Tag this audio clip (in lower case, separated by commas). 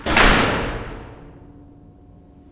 home sounds, door, slam